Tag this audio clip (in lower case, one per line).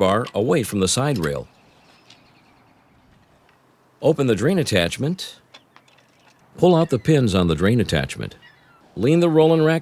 speech